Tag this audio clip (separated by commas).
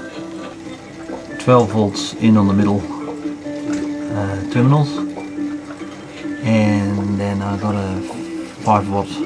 Speech, Music